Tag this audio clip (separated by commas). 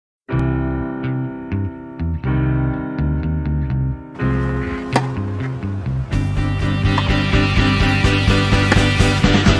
Psychedelic rock